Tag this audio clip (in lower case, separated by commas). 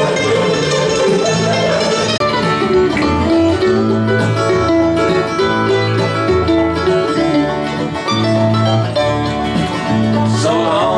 country, music, bluegrass